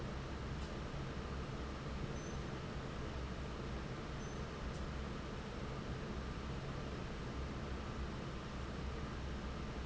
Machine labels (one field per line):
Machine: fan